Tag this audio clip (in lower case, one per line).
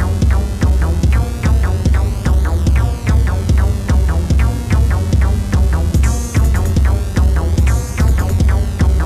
music